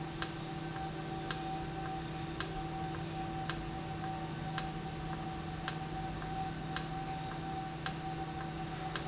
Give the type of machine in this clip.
valve